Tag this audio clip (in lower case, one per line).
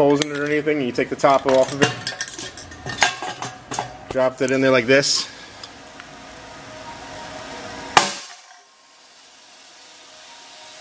speech